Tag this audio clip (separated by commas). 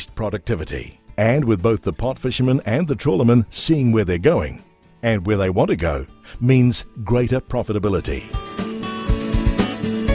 Speech, Music